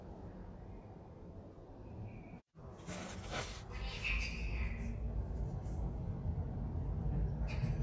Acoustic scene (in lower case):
elevator